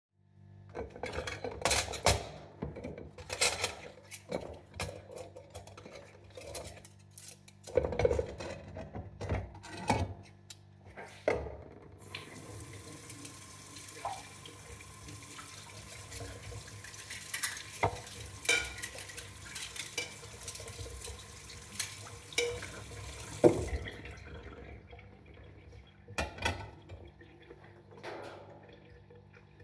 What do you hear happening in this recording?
I move some dishes, turn on the faucet and clean a plate. Finally I turn of the faucet and move the plate back on the counter.